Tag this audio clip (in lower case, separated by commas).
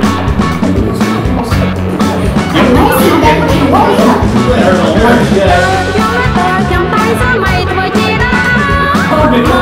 music, speech